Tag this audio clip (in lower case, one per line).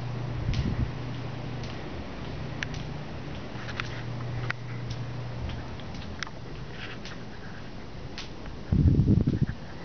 footsteps